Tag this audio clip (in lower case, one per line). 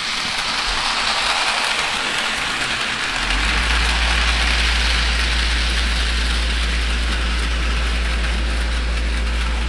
heavy engine (low frequency)